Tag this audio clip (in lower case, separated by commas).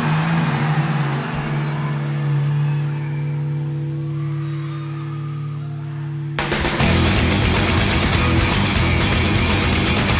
music